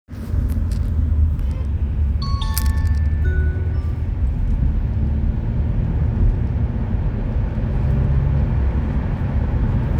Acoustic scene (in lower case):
car